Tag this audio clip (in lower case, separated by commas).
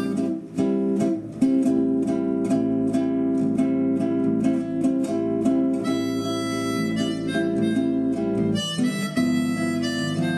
wind instrument, harmonica